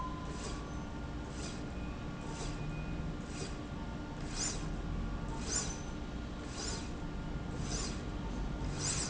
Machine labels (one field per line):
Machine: slide rail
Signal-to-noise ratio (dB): -6 dB